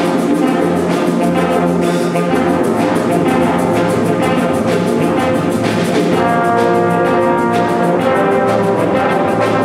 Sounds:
music

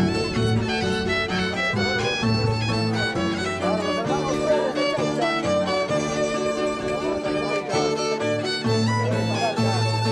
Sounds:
fiddle, music, musical instrument, speech

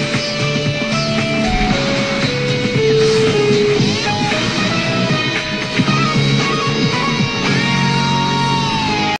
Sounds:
background music, music

